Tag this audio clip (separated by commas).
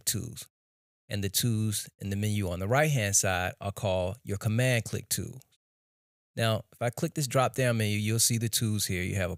Speech